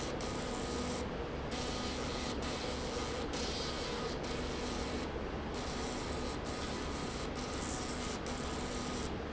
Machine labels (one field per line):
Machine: slide rail